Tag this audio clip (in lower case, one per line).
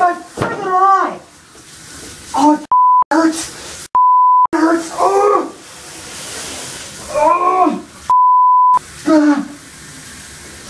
speech